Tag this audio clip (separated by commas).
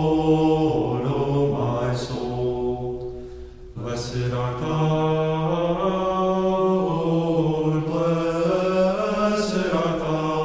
Chant, Vocal music